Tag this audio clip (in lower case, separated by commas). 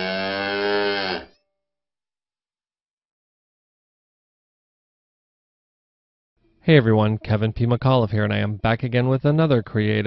speech